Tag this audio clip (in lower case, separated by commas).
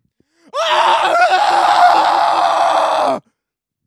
screaming, human voice